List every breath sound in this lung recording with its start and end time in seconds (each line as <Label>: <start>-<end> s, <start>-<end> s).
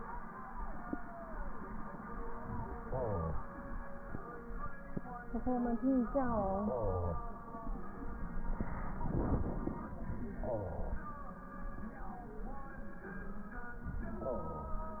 Inhalation: 2.78-3.51 s, 10.33-11.06 s, 14.17-14.90 s